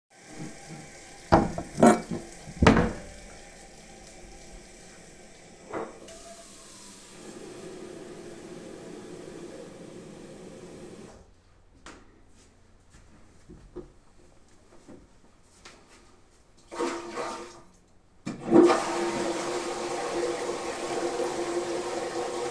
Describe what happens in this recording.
Water runs in the background, a drawer opens and closes to retrieve a pot. The pot gets filled with the water, faucet turned off, and the water drained down a toilet by flushing